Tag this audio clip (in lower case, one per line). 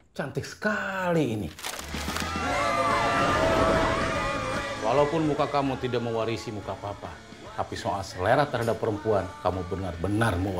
music
speech